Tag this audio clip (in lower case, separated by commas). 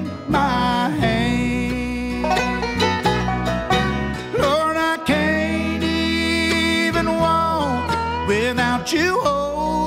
music